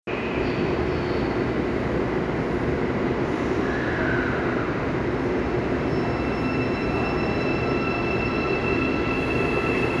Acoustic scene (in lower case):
subway station